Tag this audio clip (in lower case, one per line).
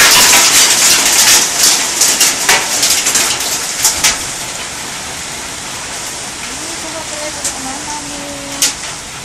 speech